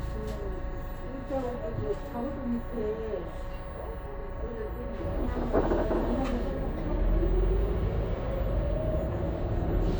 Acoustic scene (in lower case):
bus